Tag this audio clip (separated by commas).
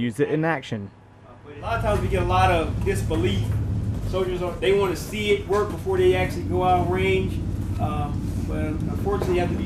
Speech